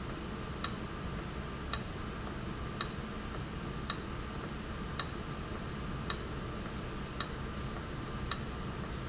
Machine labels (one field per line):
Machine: valve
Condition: abnormal